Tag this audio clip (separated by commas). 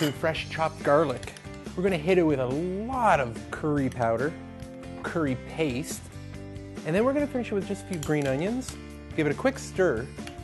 Music, Speech